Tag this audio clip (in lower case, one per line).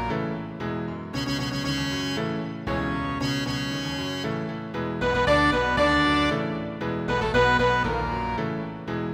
music
theme music